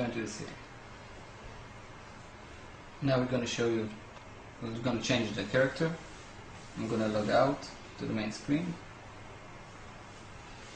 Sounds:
inside a small room, speech

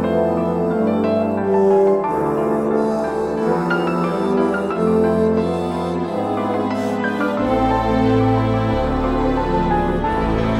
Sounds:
music

